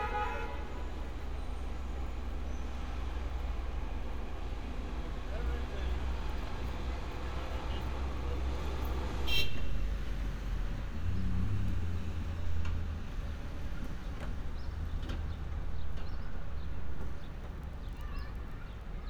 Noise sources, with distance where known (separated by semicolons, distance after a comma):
car horn; unidentified human voice